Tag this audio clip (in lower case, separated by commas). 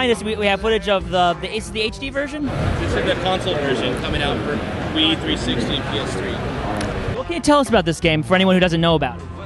music, speech